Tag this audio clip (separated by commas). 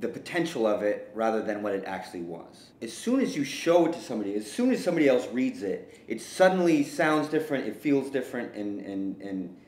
Speech